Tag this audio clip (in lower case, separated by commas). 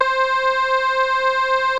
keyboard (musical), music, musical instrument